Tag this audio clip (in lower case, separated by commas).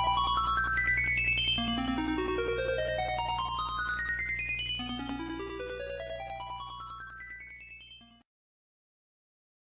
music, video game music